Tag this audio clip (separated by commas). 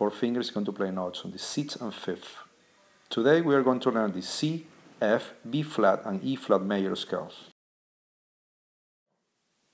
Speech